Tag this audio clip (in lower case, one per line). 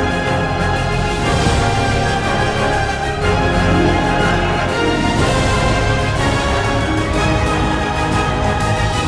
music